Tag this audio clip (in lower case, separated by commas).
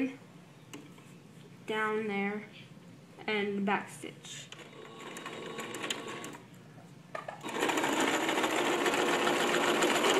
speech, inside a small room, sewing machine